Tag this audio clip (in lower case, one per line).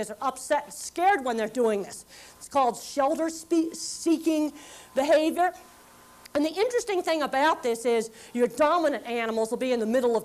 speech